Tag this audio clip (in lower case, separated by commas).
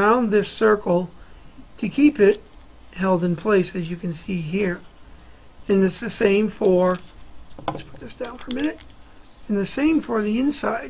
speech, inside a small room